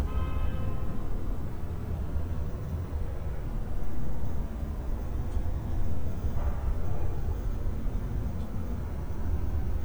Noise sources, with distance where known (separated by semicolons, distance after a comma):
car horn, far